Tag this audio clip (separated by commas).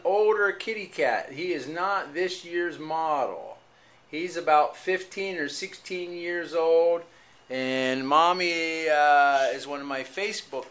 Speech